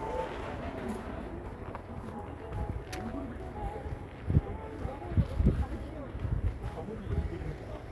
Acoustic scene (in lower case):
residential area